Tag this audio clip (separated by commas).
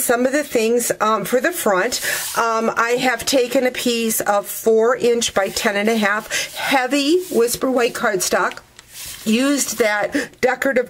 Speech